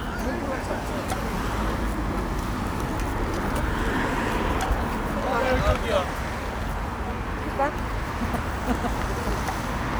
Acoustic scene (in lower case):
street